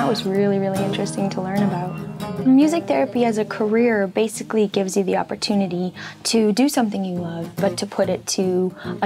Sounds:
speech
music

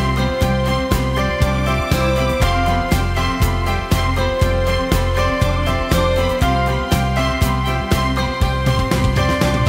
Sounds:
music

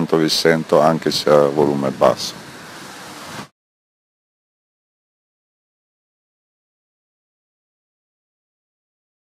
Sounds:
speech

